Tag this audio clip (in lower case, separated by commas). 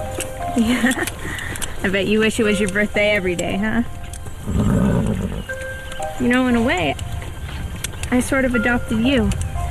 outside, rural or natural, music, speech